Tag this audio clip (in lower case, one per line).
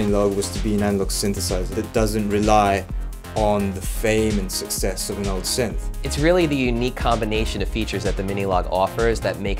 speech
music